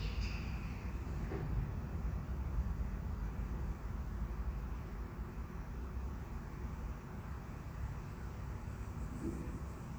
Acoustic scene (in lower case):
elevator